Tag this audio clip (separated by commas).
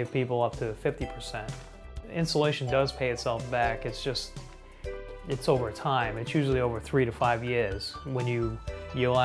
Speech, Music